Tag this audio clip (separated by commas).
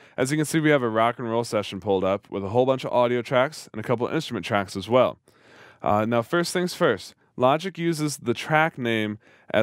Speech